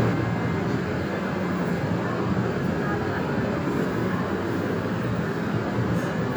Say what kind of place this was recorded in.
subway train